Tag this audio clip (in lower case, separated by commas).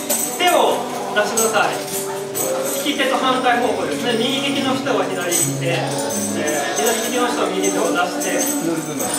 speech, tambourine, music